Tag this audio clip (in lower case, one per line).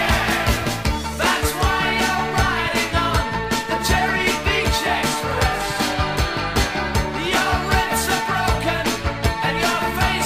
music